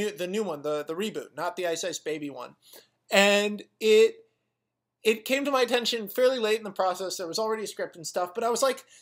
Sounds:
speech

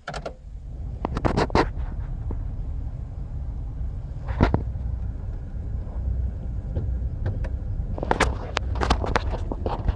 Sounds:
car, vehicle

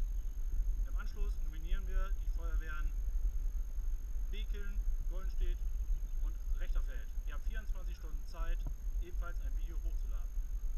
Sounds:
speech

